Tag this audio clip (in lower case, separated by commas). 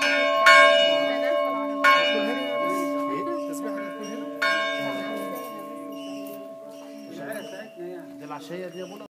church bell, church bell ringing